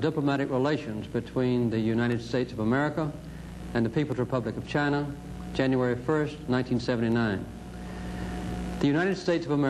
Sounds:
narration, male speech, speech

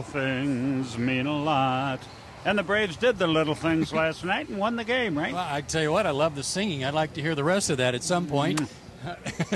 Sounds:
speech, male singing

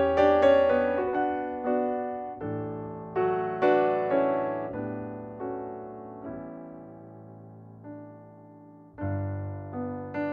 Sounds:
electric piano, piano, keyboard (musical)

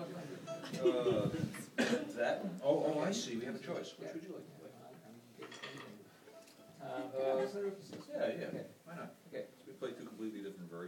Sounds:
speech

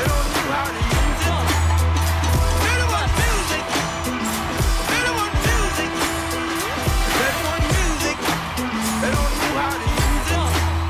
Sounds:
music, dance music, disco

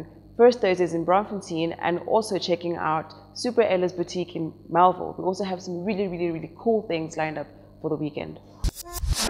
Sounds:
music, inside a small room, speech

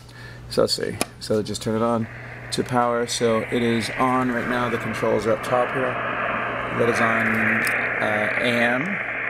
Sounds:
radio, speech

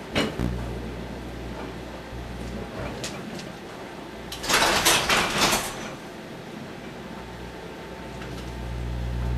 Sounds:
microwave oven

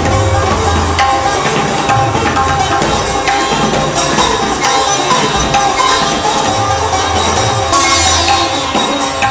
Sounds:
playing sitar

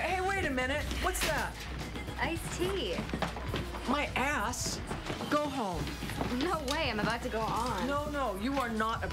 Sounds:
speech

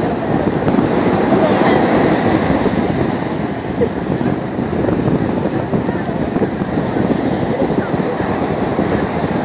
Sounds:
ocean, ocean burbling, speech

